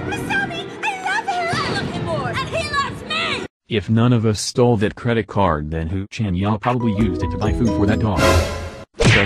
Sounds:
speech synthesizer, music, speech

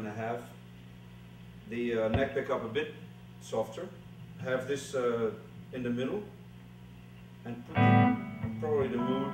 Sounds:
speech, music

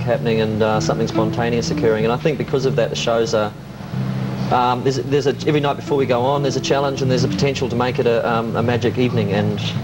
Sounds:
speech

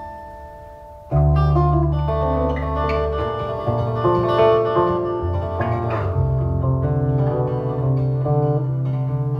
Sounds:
musical instrument, music, guitar, strum

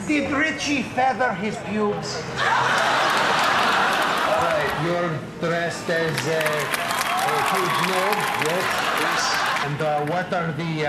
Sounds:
speech

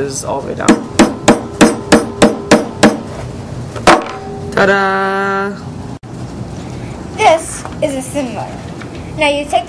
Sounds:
child speech

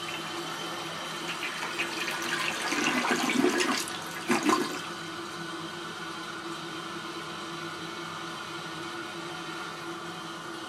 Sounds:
water, toilet flushing, toilet flush

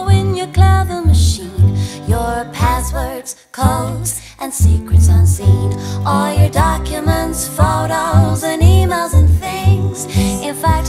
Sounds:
music, female singing

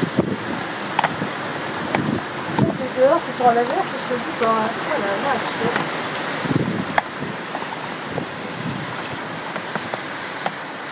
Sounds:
wind noise

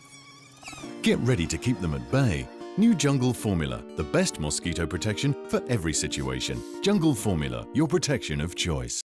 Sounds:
mosquito, housefly, mosquito buzzing, insect

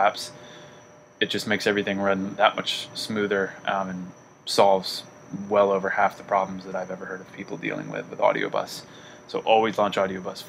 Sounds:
speech

